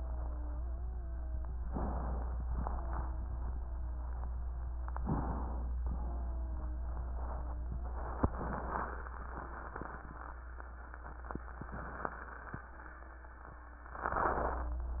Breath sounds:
0.04-1.64 s: wheeze
1.69-2.62 s: inhalation
2.60-4.96 s: wheeze
4.96-5.73 s: inhalation
5.75-8.02 s: wheeze
8.21-9.07 s: inhalation
9.13-11.41 s: wheeze
11.51-12.48 s: inhalation
12.62-14.90 s: wheeze

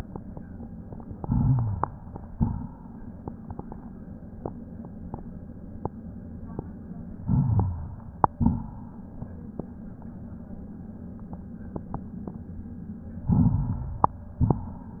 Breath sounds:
1.18-1.99 s: inhalation
1.18-1.99 s: rhonchi
2.26-2.73 s: exhalation
7.17-7.99 s: inhalation
7.17-7.99 s: rhonchi
8.31-8.79 s: exhalation
13.28-14.06 s: inhalation
13.28-14.06 s: rhonchi

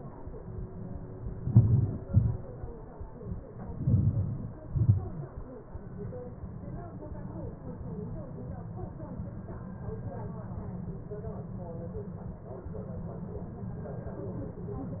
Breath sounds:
1.50-1.96 s: inhalation
2.14-2.44 s: exhalation
3.89-4.53 s: inhalation
4.76-5.11 s: exhalation

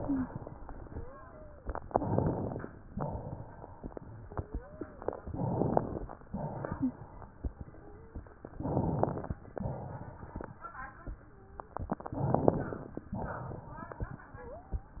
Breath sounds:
0.00-0.28 s: wheeze
0.85-1.63 s: wheeze
1.84-2.68 s: inhalation
2.92-3.87 s: exhalation
4.21-5.05 s: wheeze
5.22-6.17 s: inhalation
6.28-7.23 s: exhalation
7.67-8.25 s: wheeze
8.56-9.43 s: inhalation
9.53-10.57 s: exhalation
11.25-11.76 s: wheeze
12.03-13.07 s: inhalation
13.11-14.15 s: exhalation

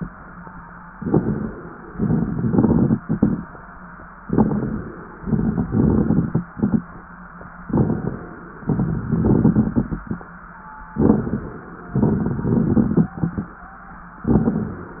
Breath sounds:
0.93-1.90 s: inhalation
0.93-1.90 s: crackles
1.94-3.46 s: exhalation
1.94-3.46 s: crackles
4.23-5.20 s: inhalation
4.23-5.20 s: crackles
5.20-6.84 s: exhalation
7.67-8.63 s: inhalation
7.67-8.63 s: crackles
8.67-10.31 s: exhalation
10.97-11.94 s: inhalation
10.97-11.94 s: crackles
11.95-13.60 s: exhalation
11.95-13.60 s: crackles
14.25-15.00 s: inhalation
14.25-15.00 s: crackles

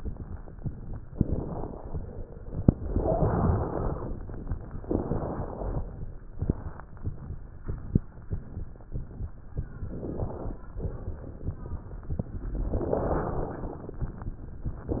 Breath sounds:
1.07-2.23 s: inhalation
1.07-2.23 s: crackles
2.77-4.13 s: exhalation
2.77-4.13 s: wheeze
4.80-6.04 s: exhalation
4.80-6.04 s: wheeze
6.34-6.99 s: inhalation
6.34-6.99 s: crackles
9.83-10.62 s: inhalation
9.83-10.62 s: crackles
10.82-14.25 s: exhalation
14.84-15.00 s: inhalation
14.84-15.00 s: crackles

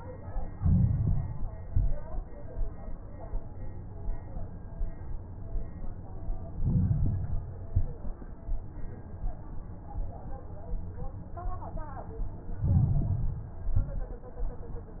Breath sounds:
0.49-1.52 s: inhalation
0.49-1.52 s: crackles
1.59-2.28 s: exhalation
1.59-2.28 s: crackles
6.55-7.58 s: inhalation
6.55-7.58 s: crackles
7.64-8.32 s: exhalation
7.64-8.32 s: crackles
12.58-13.60 s: inhalation
12.58-13.60 s: crackles
13.61-14.29 s: exhalation
13.61-14.29 s: crackles

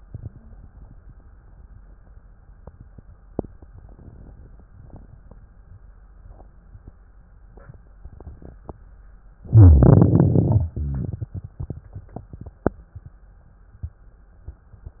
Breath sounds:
9.40-10.71 s: inhalation
9.40-10.71 s: crackles
10.73-12.76 s: exhalation
10.73-12.76 s: crackles

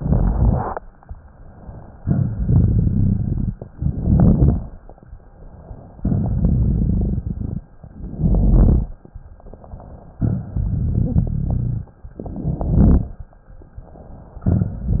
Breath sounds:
0.00-0.76 s: inhalation
0.00-0.76 s: crackles
1.97-3.65 s: exhalation
1.97-3.65 s: crackles
3.70-4.88 s: inhalation
3.70-4.88 s: crackles
5.96-7.71 s: exhalation
5.96-7.71 s: crackles
7.82-8.99 s: inhalation
7.82-8.99 s: crackles
10.15-11.90 s: exhalation
10.15-11.90 s: crackles
12.16-13.19 s: inhalation
12.16-13.19 s: crackles

